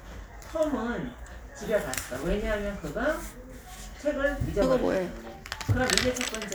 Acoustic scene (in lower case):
crowded indoor space